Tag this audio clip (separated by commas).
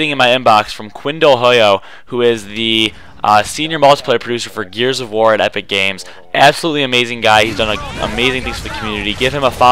Speech